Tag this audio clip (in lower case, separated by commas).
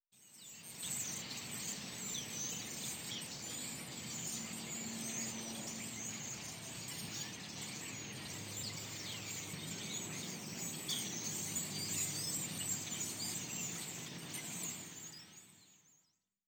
wild animals, tweet, bird vocalization, bird, animal